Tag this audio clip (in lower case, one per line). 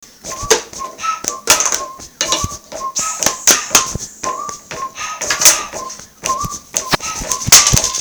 human voice